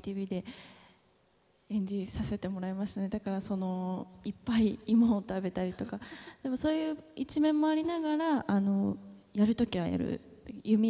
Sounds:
people battle cry

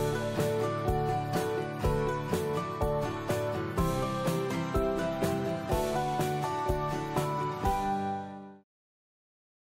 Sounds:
Music

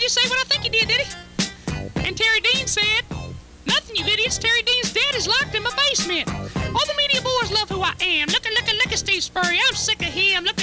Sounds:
Speech, Music

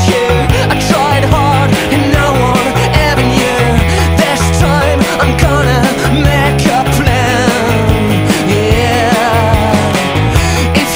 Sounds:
Independent music, Music

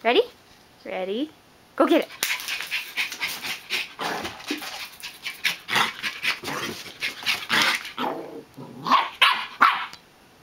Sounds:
Bow-wow, Dog, inside a small room, Speech, pets, Animal, Bark

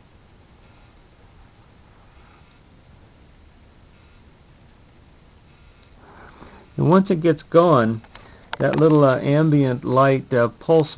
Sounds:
Speech

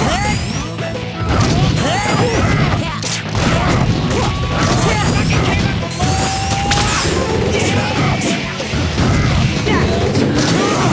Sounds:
Music, Smash

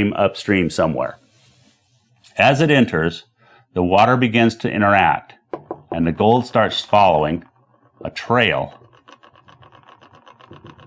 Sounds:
Speech, inside a small room

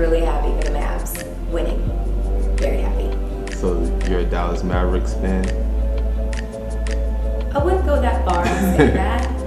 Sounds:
Music, Speech

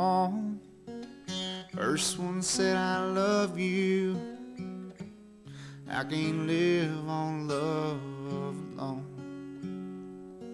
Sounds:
Music

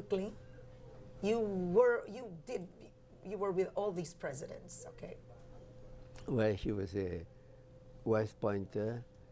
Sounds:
Speech

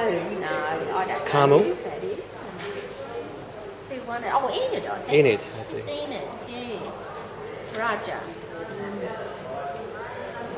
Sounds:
Female speech, Speech

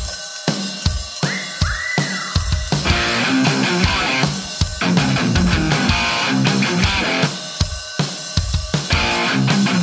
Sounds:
Music

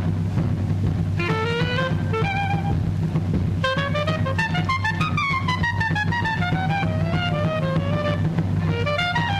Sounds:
playing clarinet

